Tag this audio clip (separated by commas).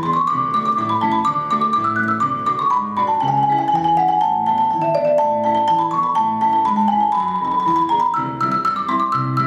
Vibraphone, playing vibraphone, Music